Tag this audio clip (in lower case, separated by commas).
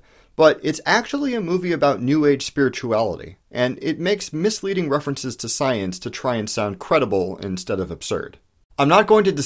speech